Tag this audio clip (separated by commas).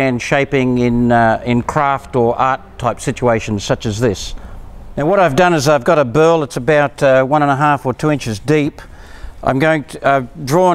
Speech